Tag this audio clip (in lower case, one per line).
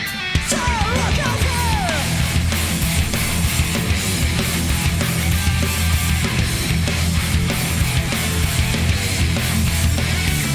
music